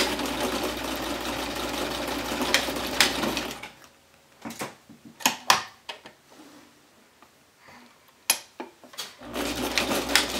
Vibrations and humming from a sewing machine start and stop followed by some metal banging